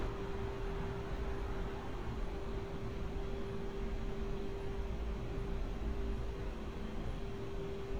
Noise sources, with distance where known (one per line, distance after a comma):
engine of unclear size